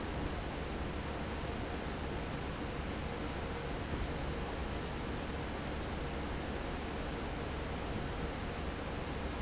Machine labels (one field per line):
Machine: fan